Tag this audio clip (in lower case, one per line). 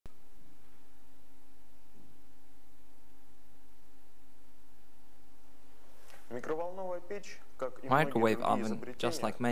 speech